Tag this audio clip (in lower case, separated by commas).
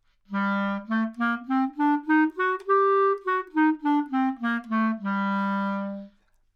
music, woodwind instrument, musical instrument